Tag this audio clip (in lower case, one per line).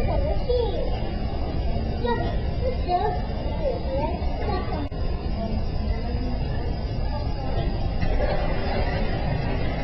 speech